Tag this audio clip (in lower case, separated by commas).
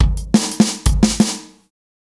music, musical instrument, percussion, drum kit